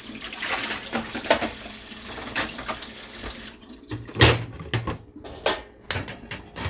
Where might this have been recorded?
in a kitchen